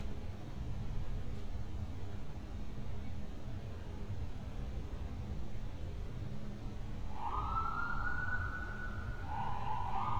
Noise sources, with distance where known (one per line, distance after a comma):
siren, far